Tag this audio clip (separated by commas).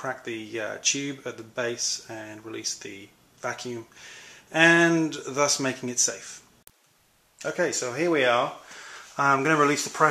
Speech, inside a small room